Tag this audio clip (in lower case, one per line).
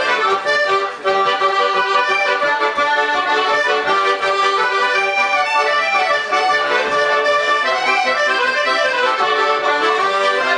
accordion
playing accordion